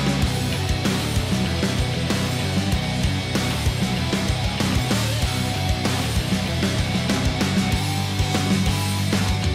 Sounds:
Music

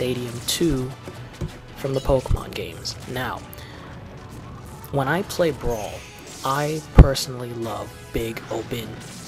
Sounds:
Speech, Smash

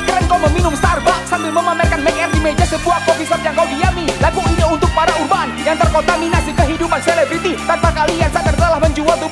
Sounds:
Music

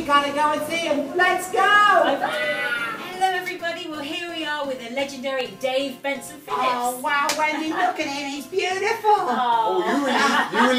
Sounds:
Speech, Music

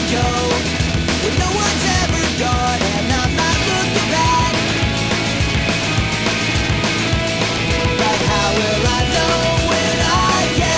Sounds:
Music

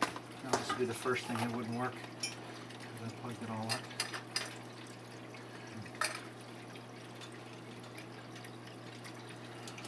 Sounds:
Speech, Fill (with liquid), inside a small room

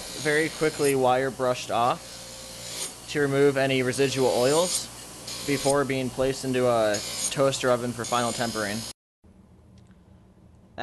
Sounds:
inside a small room, Speech

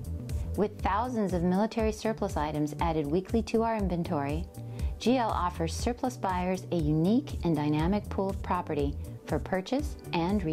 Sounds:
Music, Speech

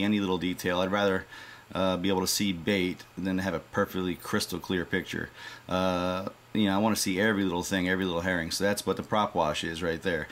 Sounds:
Speech

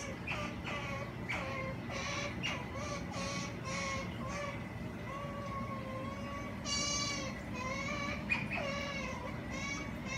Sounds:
otter growling

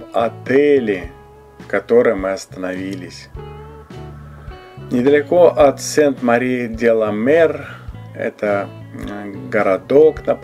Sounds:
striking pool

